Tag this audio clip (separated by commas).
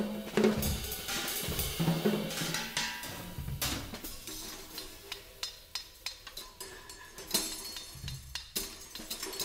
Drum, Musical instrument, Drum kit, Music, inside a small room